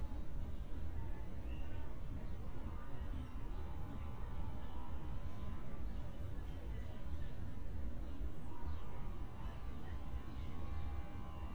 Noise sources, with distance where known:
background noise

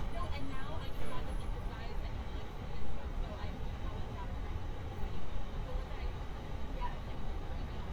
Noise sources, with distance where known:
medium-sounding engine, far
person or small group talking, near

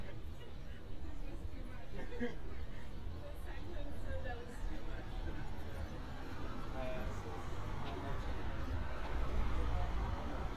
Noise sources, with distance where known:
unidentified human voice, far

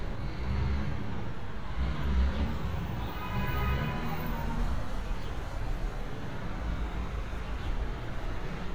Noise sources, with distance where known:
large-sounding engine
car horn, far

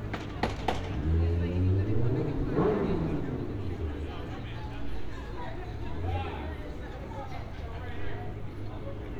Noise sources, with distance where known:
person or small group talking, near

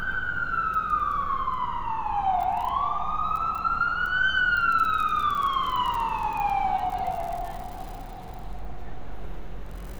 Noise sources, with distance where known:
siren, near

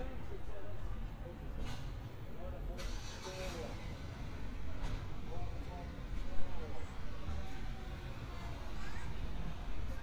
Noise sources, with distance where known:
medium-sounding engine, near
person or small group talking, far

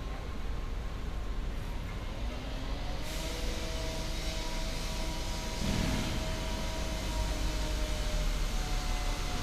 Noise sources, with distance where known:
unidentified powered saw

